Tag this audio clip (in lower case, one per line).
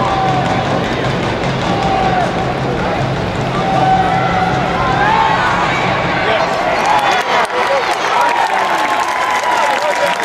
speech
music